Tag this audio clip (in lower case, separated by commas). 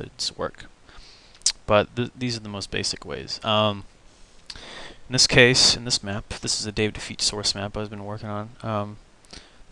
speech